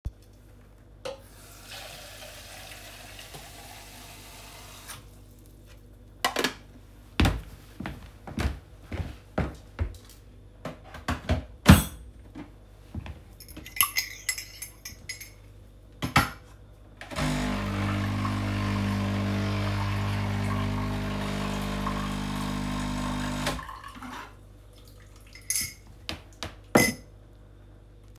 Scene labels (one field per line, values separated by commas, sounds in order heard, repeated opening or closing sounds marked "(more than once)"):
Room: kitchen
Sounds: running water, footsteps, cutlery and dishes, coffee machine